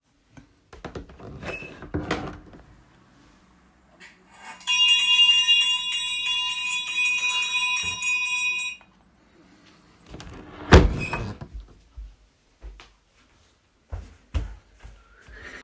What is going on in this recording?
I opened the window and then rang a small bell in the room.